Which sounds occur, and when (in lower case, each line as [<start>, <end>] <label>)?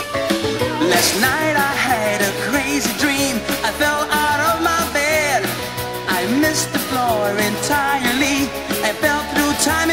[0.00, 9.92] music
[0.58, 3.34] speech synthesizer
[3.74, 5.43] speech synthesizer
[6.04, 8.44] speech synthesizer
[8.66, 9.92] speech synthesizer